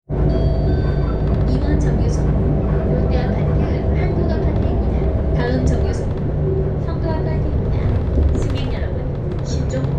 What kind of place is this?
bus